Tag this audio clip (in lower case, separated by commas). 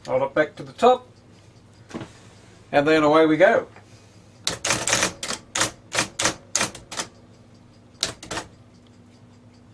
speech, typewriter